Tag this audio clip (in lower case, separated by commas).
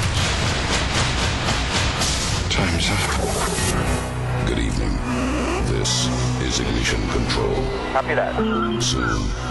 music, speech